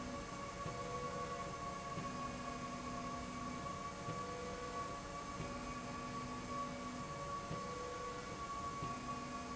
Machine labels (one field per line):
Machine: slide rail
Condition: normal